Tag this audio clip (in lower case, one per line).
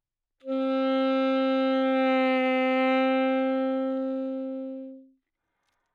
music
musical instrument
wind instrument